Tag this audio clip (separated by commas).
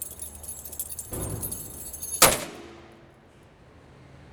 Domestic sounds, Keys jangling